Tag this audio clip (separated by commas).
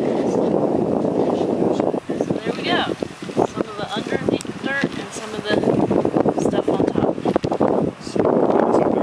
Speech